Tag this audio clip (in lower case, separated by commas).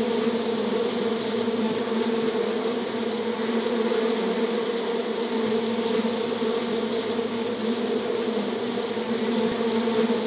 bee